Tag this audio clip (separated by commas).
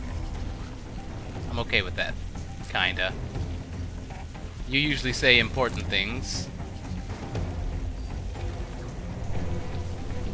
Music, Speech